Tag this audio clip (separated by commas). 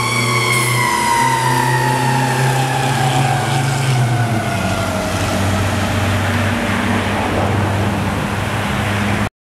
Vehicle, Truck